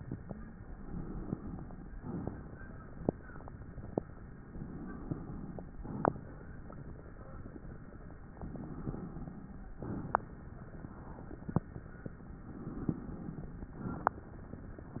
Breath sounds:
0.59-1.97 s: inhalation
1.95-3.10 s: exhalation
4.38-5.76 s: inhalation
5.76-6.51 s: exhalation
8.37-9.75 s: inhalation
9.81-10.56 s: exhalation
12.42-13.80 s: inhalation
13.80-14.62 s: exhalation

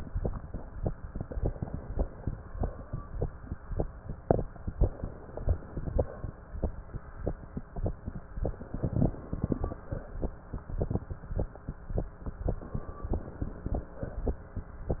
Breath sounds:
1.07-2.45 s: inhalation
2.45-3.06 s: exhalation
4.90-6.32 s: inhalation
6.35-6.99 s: exhalation
8.45-9.79 s: inhalation
9.82-10.54 s: exhalation
12.46-13.86 s: inhalation
13.86-14.58 s: exhalation

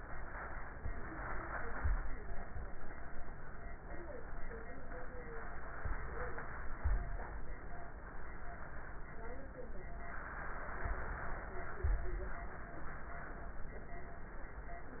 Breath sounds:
0.00-0.74 s: inhalation
0.80-2.01 s: exhalation
5.26-6.97 s: inhalation
10.03-12.01 s: inhalation

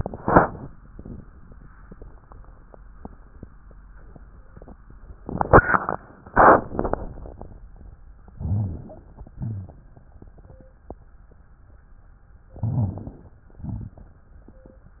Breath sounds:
8.32-9.32 s: inhalation
8.34-9.32 s: crackles
9.38-10.29 s: exhalation
9.38-10.29 s: crackles
12.58-13.57 s: inhalation
12.58-13.57 s: crackles
13.60-14.47 s: exhalation
13.60-14.47 s: crackles

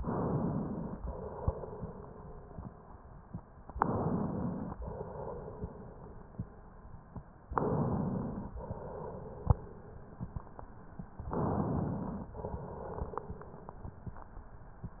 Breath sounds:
0.00-1.02 s: inhalation
1.02-2.84 s: exhalation
3.72-4.76 s: inhalation
4.76-6.76 s: exhalation
7.52-8.54 s: inhalation
8.54-10.30 s: exhalation
11.30-12.30 s: inhalation
12.30-14.06 s: exhalation

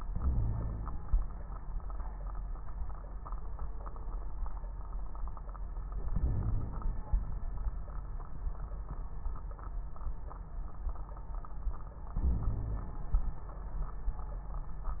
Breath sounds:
0.00-1.00 s: inhalation
0.09-0.96 s: wheeze
6.11-7.13 s: inhalation
6.11-7.13 s: crackles
12.17-13.15 s: inhalation
12.23-12.95 s: wheeze

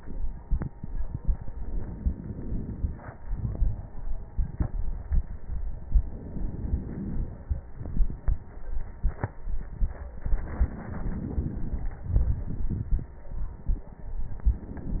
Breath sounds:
1.50-3.15 s: inhalation
3.19-5.88 s: exhalation
3.19-5.88 s: crackles
5.92-7.68 s: inhalation
7.69-10.09 s: exhalation
7.69-10.09 s: crackles
10.11-11.96 s: inhalation
11.99-14.19 s: exhalation
11.99-14.19 s: crackles

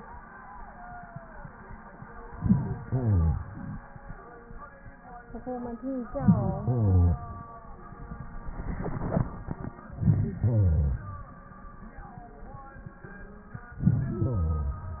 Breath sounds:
2.22-3.78 s: inhalation
9.85-11.41 s: inhalation
13.72-15.00 s: inhalation

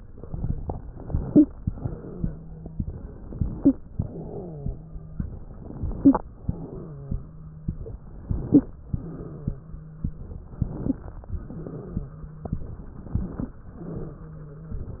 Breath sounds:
0.59-1.46 s: inhalation
1.22-1.46 s: wheeze
1.61-2.70 s: exhalation
1.61-2.70 s: wheeze
2.73-3.74 s: inhalation
3.51-3.76 s: wheeze
3.97-5.16 s: wheeze
3.97-4.74 s: exhalation
5.20-6.22 s: inhalation
5.94-6.22 s: wheeze
6.40-7.17 s: exhalation
6.40-7.72 s: wheeze
8.01-8.90 s: inhalation
8.43-8.75 s: wheeze
8.90-9.66 s: exhalation
8.90-10.21 s: wheeze
10.44-11.33 s: inhalation
10.80-11.06 s: wheeze
11.37-12.11 s: exhalation
11.37-12.62 s: wheeze
12.66-13.59 s: inhalation
13.66-14.36 s: exhalation
13.66-14.91 s: wheeze

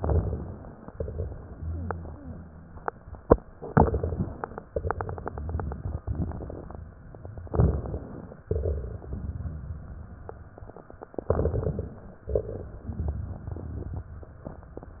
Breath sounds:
0.00-0.84 s: inhalation
0.00-0.84 s: crackles
0.99-3.09 s: exhalation
0.99-3.09 s: crackles
3.68-4.63 s: inhalation
3.68-4.63 s: crackles
4.71-6.96 s: exhalation
4.71-6.96 s: crackles
7.49-8.45 s: inhalation
7.49-8.45 s: crackles
8.50-10.76 s: exhalation
8.50-10.76 s: crackles
11.23-12.18 s: inhalation
11.23-12.18 s: crackles
12.22-14.12 s: exhalation
12.22-14.12 s: crackles

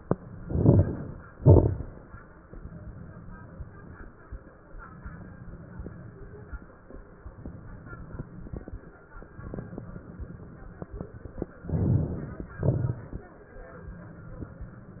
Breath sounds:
0.21-1.28 s: inhalation
0.21-1.28 s: crackles
1.31-1.98 s: exhalation
1.31-1.98 s: crackles
11.65-12.51 s: inhalation
11.65-12.51 s: crackles
12.55-13.30 s: exhalation
12.55-13.30 s: crackles

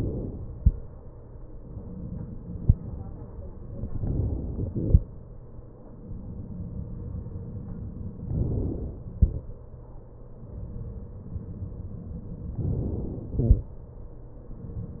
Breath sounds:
1.66-3.96 s: exhalation
3.98-5.04 s: inhalation
5.04-8.28 s: exhalation
8.28-9.14 s: inhalation
9.14-12.58 s: exhalation
12.58-13.35 s: inhalation
13.35-15.00 s: exhalation

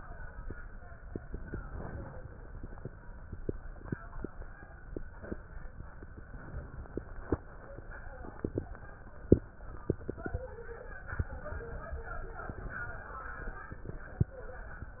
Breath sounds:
1.25-2.23 s: inhalation
6.32-7.31 s: inhalation
11.10-12.41 s: inhalation
12.51-13.68 s: exhalation

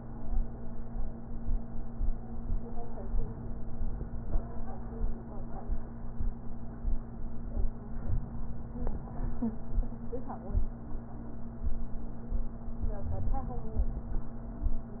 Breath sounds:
3.15-4.37 s: inhalation
8.06-8.29 s: rhonchi
8.07-9.29 s: inhalation
12.86-14.08 s: inhalation
13.03-13.36 s: wheeze

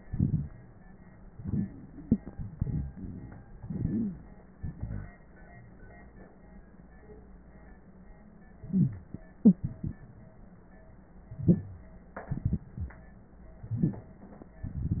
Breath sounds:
3.57-4.25 s: inhalation
3.67-4.25 s: wheeze
4.57-5.18 s: exhalation
8.63-9.22 s: inhalation
8.70-9.06 s: wheeze
9.51-10.34 s: exhalation
11.31-11.90 s: inhalation
12.22-12.98 s: exhalation

